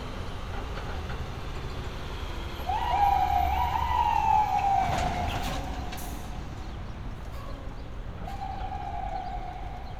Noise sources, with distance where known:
siren, near

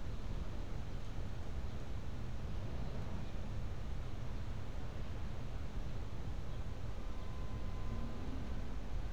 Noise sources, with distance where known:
background noise

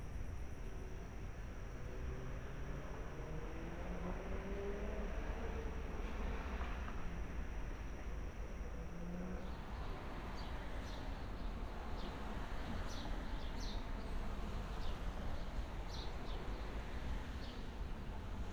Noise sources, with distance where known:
engine of unclear size, far

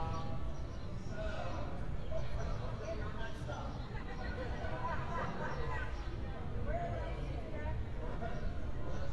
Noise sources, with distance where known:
person or small group talking, near

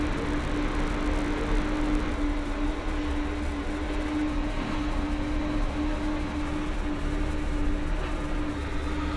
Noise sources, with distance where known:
large-sounding engine

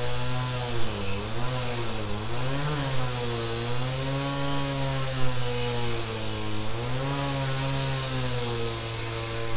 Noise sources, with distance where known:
chainsaw

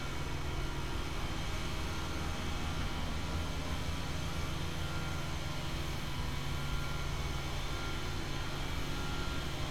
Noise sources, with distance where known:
unidentified powered saw, near

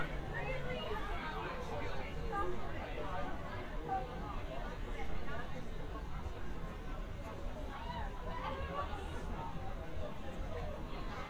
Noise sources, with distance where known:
person or small group talking

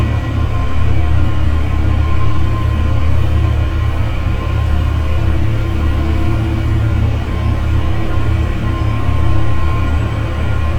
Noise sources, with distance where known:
engine of unclear size, near

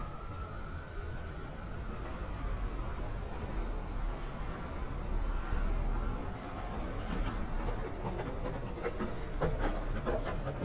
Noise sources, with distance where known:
siren, far

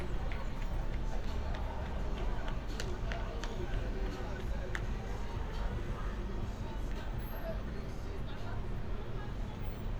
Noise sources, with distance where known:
music from an unclear source
person or small group talking

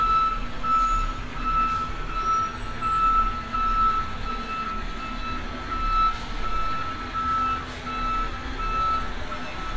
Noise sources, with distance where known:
reverse beeper, near

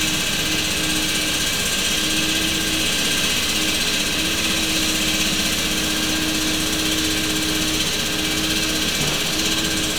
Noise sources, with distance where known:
unidentified impact machinery, near

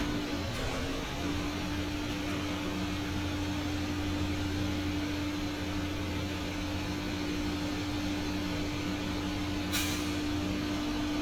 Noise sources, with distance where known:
unidentified impact machinery

